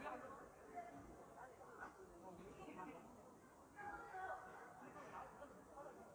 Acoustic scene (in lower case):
park